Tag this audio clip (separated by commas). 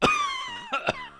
Respiratory sounds, Cough